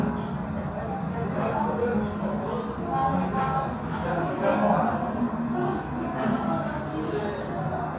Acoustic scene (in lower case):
restaurant